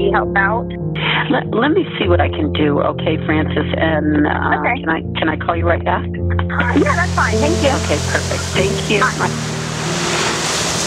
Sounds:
speech, music

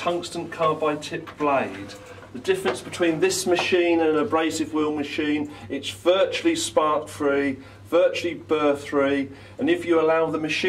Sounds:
speech

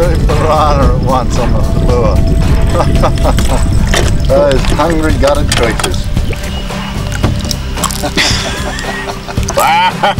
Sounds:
speech, animal, outside, rural or natural, music

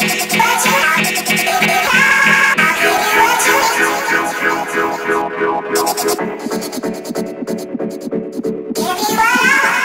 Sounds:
electronic music, dubstep, music

